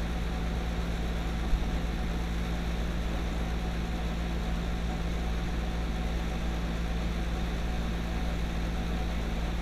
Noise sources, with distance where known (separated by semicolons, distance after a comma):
engine of unclear size, near